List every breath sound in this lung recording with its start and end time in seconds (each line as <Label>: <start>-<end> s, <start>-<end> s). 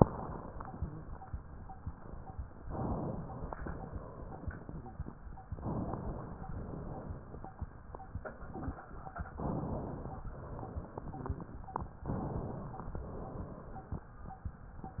Inhalation: 2.60-3.61 s, 5.56-6.55 s, 9.34-10.24 s, 12.05-12.96 s
Exhalation: 3.66-4.99 s, 6.55-7.61 s, 10.24-11.44 s, 12.96-14.08 s